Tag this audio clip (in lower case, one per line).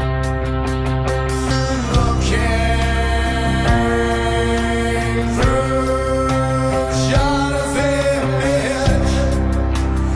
soul music
music
blues